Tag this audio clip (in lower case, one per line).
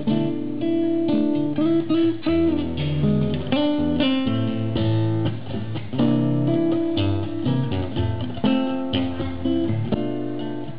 music
acoustic guitar
strum
musical instrument
guitar